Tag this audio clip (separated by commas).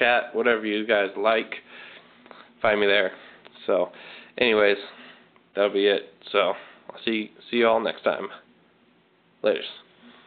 Speech